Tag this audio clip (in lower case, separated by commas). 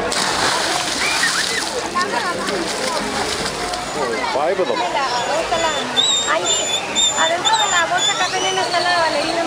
speech, splash, splashing water